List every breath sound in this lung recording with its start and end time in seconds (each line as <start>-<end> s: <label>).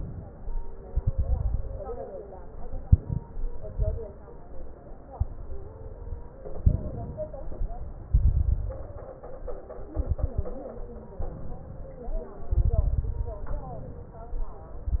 0.00-0.34 s: inhalation
0.85-1.84 s: exhalation
0.85-1.84 s: crackles
2.41-3.25 s: inhalation
2.41-3.25 s: crackles
3.74-4.42 s: exhalation
3.74-4.42 s: crackles
5.15-6.33 s: inhalation
6.61-7.43 s: exhalation
6.61-7.43 s: crackles
7.54-8.11 s: inhalation
8.11-8.78 s: exhalation
8.11-8.78 s: crackles
11.31-12.06 s: inhalation
12.43-13.38 s: exhalation
12.43-13.38 s: crackles
13.57-14.29 s: inhalation